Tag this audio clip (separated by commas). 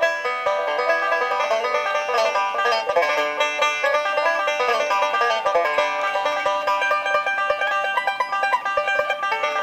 playing banjo